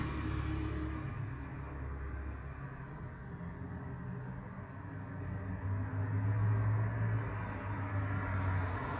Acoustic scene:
street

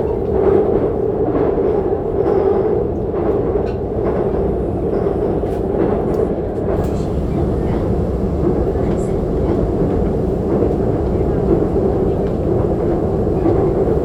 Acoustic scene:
subway train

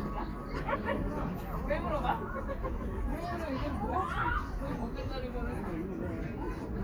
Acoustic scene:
park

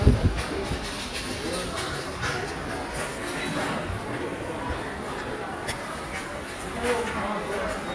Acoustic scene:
subway station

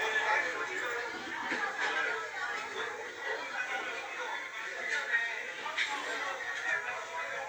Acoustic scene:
crowded indoor space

